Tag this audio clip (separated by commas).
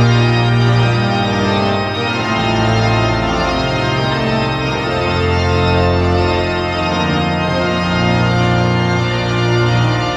Music, Classical music